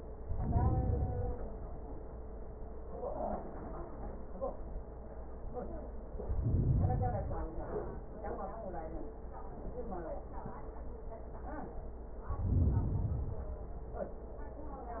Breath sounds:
0.17-1.67 s: inhalation
6.15-7.65 s: inhalation
12.20-13.68 s: inhalation

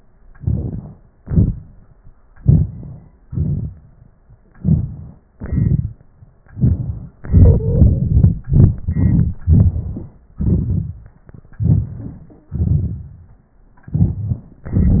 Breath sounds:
0.34-0.81 s: inhalation
1.17-1.54 s: exhalation
2.37-2.68 s: inhalation
3.25-3.70 s: exhalation
4.59-4.94 s: inhalation
5.35-5.90 s: exhalation
11.60-11.94 s: inhalation
11.86-12.26 s: wheeze
12.53-13.06 s: exhalation

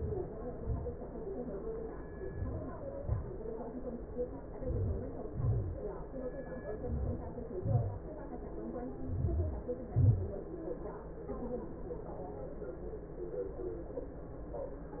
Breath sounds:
4.31-5.12 s: inhalation
5.10-5.81 s: exhalation
6.51-7.29 s: inhalation
7.32-8.03 s: exhalation
8.82-9.73 s: inhalation
9.73-10.49 s: exhalation

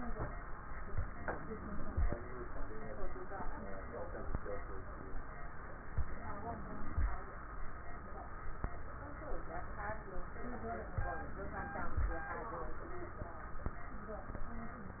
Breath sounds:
0.90-2.09 s: inhalation
0.90-2.09 s: crackles
5.91-7.10 s: inhalation
5.91-7.10 s: crackles
10.98-12.17 s: inhalation
10.98-12.17 s: crackles

